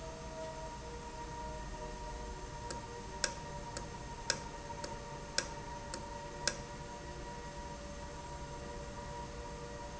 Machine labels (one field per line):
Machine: valve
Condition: normal